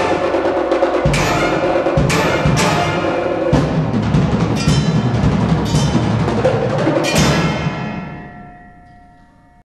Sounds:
percussion
music

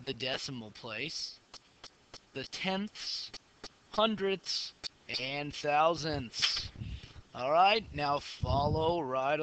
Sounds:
speech

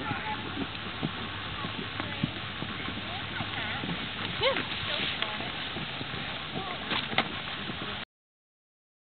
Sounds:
speech

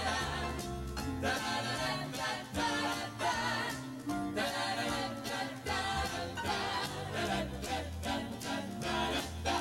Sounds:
music

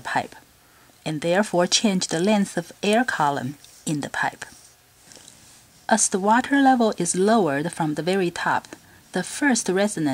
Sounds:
crackle
speech

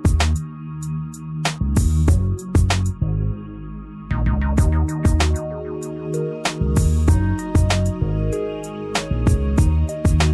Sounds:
music

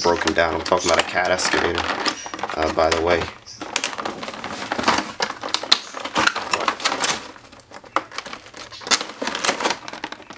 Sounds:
speech

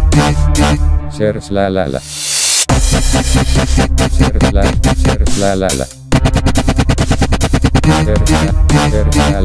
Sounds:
dubstep
music

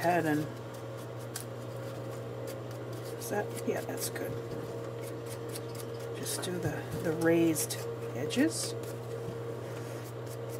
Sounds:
inside a small room
speech

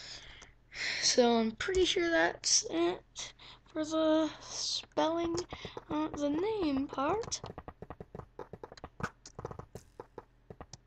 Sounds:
speech

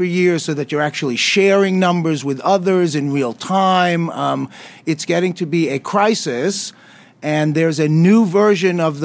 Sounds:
speech

